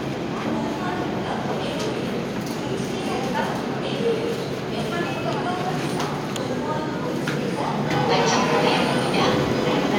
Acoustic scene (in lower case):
subway station